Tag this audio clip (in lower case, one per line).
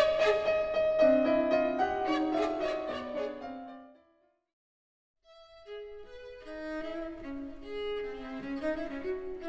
bowed string instrument
orchestra
music
cello
fiddle
musical instrument
piano
keyboard (musical)